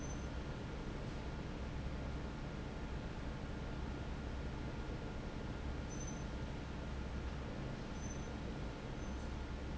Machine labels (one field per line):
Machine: fan